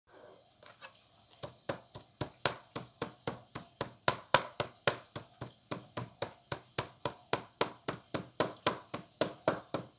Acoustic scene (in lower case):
kitchen